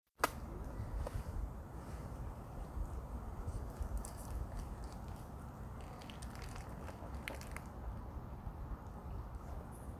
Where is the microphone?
in a park